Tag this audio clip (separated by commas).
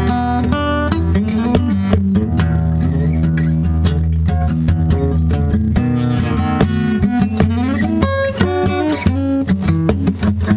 Plucked string instrument, Acoustic guitar, Guitar, playing acoustic guitar, Music, Musical instrument